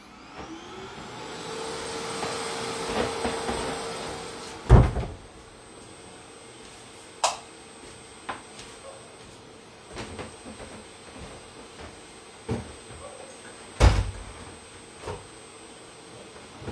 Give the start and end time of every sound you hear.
[0.00, 16.72] vacuum cleaner
[4.58, 5.26] door
[7.17, 7.49] light switch
[8.24, 12.53] footsteps
[13.72, 14.29] window

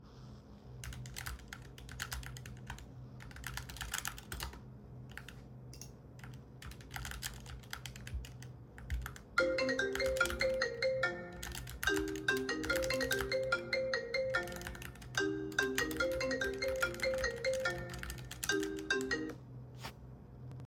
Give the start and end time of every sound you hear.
[0.49, 19.55] keyboard typing
[9.25, 19.50] phone ringing

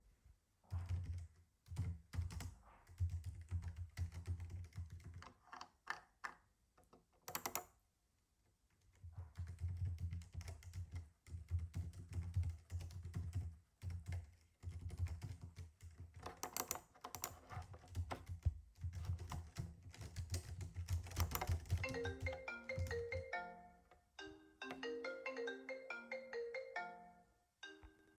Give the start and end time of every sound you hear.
[0.68, 5.53] keyboard typing
[8.83, 16.44] keyboard typing
[17.51, 23.77] keyboard typing
[21.75, 28.18] phone ringing

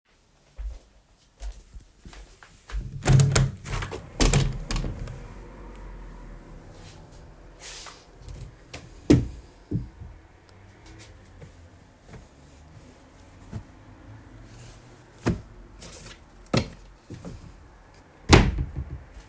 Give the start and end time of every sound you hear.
[2.73, 5.09] window
[8.97, 9.34] wardrobe or drawer
[18.27, 18.57] wardrobe or drawer

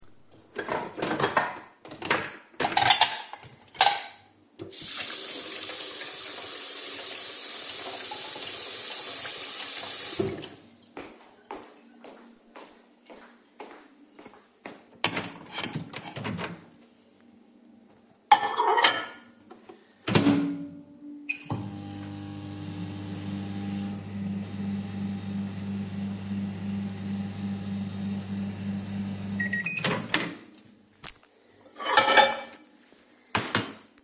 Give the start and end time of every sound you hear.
[0.31, 4.44] cutlery and dishes
[4.54, 10.86] running water
[10.96, 14.89] footsteps
[14.95, 19.72] cutlery and dishes
[19.89, 30.70] microwave
[31.64, 34.04] cutlery and dishes

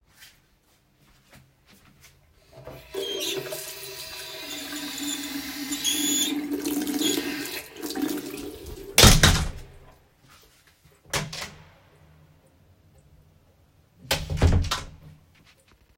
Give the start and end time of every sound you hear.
[2.66, 8.94] running water
[8.95, 9.85] wardrobe or drawer
[8.95, 9.69] door
[10.87, 11.67] wardrobe or drawer
[11.11, 11.53] door
[13.85, 15.15] wardrobe or drawer
[14.05, 14.88] door

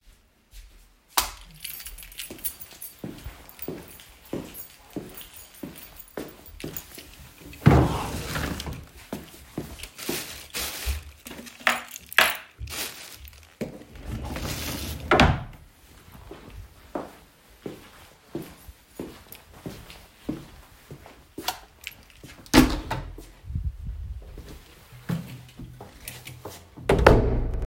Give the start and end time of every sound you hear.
[1.05, 1.59] light switch
[2.07, 7.31] keys
[2.94, 7.28] footsteps
[7.50, 9.02] wardrobe or drawer
[13.94, 15.66] wardrobe or drawer
[16.91, 22.04] footsteps
[21.29, 21.86] light switch
[22.37, 23.41] door
[25.00, 26.75] footsteps
[26.80, 27.67] door

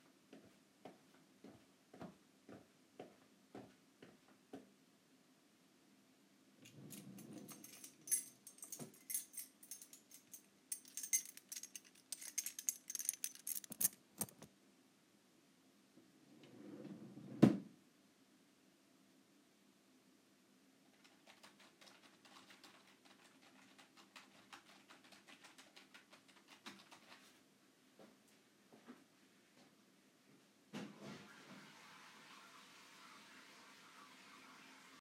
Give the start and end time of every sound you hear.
[0.00, 5.90] footsteps
[6.54, 8.61] wardrobe or drawer
[6.62, 14.66] keys
[16.43, 17.74] wardrobe or drawer
[20.84, 27.51] keyboard typing
[27.14, 30.66] footsteps
[30.72, 35.01] toilet flushing

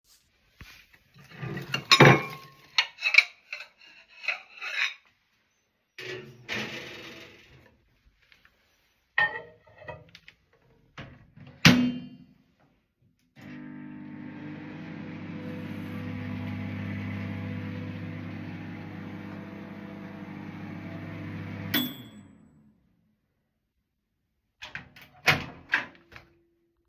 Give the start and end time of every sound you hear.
[1.27, 5.37] cutlery and dishes
[5.89, 8.24] microwave
[9.04, 10.61] cutlery and dishes
[10.89, 12.69] microwave
[13.33, 22.93] microwave
[24.57, 26.66] microwave

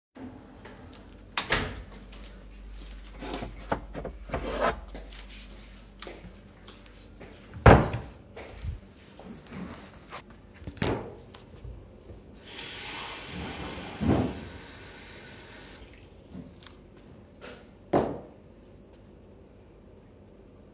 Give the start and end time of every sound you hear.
[1.17, 2.10] door
[2.80, 5.23] cutlery and dishes
[4.96, 12.20] footsteps
[7.41, 8.41] wardrobe or drawer
[10.68, 11.34] wardrobe or drawer
[12.35, 16.15] running water
[17.41, 18.52] cutlery and dishes

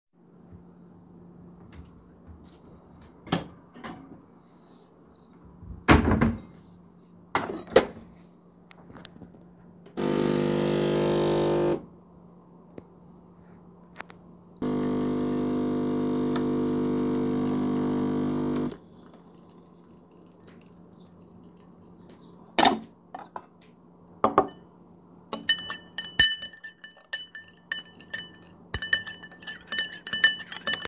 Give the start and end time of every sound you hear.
[9.89, 11.86] coffee machine
[14.61, 18.78] coffee machine
[22.48, 24.70] cutlery and dishes
[25.21, 30.88] cutlery and dishes

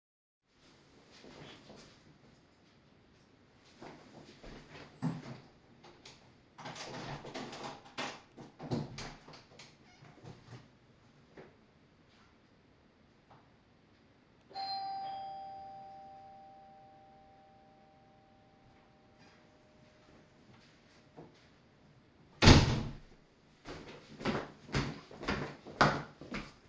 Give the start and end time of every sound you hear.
[3.55, 5.49] footsteps
[5.79, 10.76] door
[11.20, 11.65] footsteps
[13.20, 13.53] footsteps
[14.39, 19.48] bell ringing
[21.06, 21.42] footsteps
[22.26, 23.08] door
[23.73, 26.69] footsteps

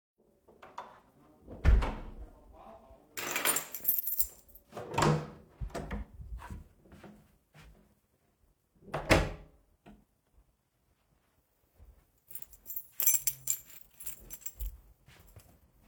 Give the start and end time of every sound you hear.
[1.54, 2.08] door
[3.11, 4.39] keys
[4.70, 6.12] door
[6.25, 8.63] footsteps
[8.87, 9.54] door
[12.27, 14.77] keys

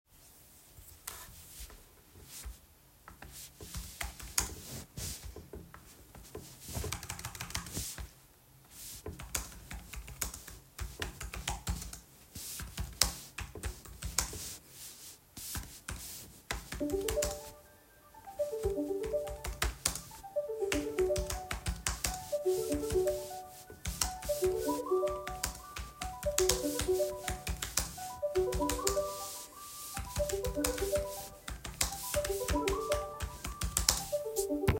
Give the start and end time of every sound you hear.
[0.94, 1.33] keyboard typing
[3.51, 34.79] keyboard typing
[16.65, 34.79] phone ringing

